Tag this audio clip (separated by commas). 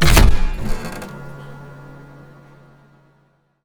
Mechanisms